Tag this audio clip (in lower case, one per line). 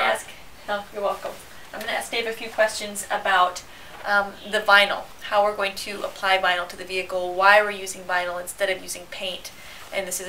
speech